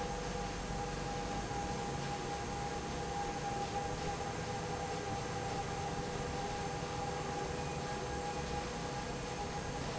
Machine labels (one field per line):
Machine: fan